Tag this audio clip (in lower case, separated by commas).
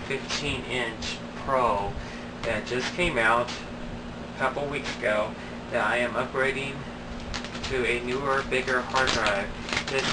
inside a small room, speech